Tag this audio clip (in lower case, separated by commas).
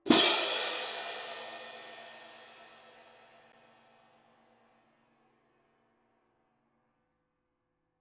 music, musical instrument, cymbal, crash cymbal, percussion